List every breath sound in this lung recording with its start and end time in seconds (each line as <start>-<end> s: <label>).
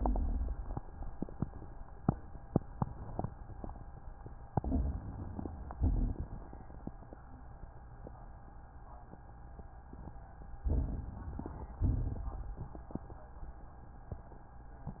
0.00-0.76 s: exhalation
0.00-0.76 s: crackles
4.51-5.69 s: inhalation
4.51-5.69 s: crackles
5.77-6.60 s: exhalation
5.77-6.60 s: crackles
10.61-11.78 s: inhalation
10.61-11.78 s: crackles
11.88-12.81 s: exhalation
11.88-12.81 s: crackles